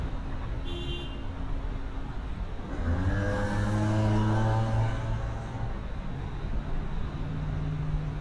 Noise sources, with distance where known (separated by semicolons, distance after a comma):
small-sounding engine, near; car horn, near